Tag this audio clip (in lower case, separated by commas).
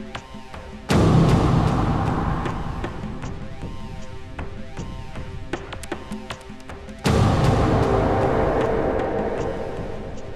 music